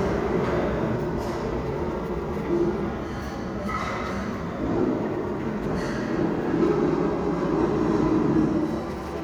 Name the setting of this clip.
restaurant